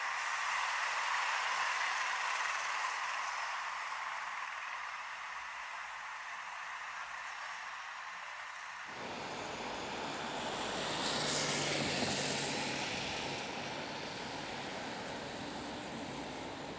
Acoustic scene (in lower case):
street